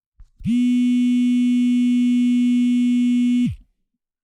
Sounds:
telephone, alarm

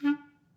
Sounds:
music, musical instrument, woodwind instrument

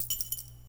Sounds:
domestic sounds, coin (dropping)

